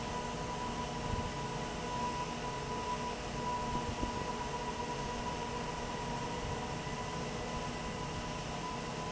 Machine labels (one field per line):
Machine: fan